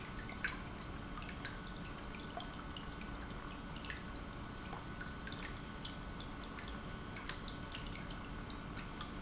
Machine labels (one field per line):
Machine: pump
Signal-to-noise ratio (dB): 6 dB